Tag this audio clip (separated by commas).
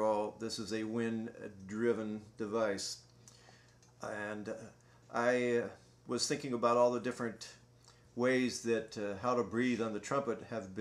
Speech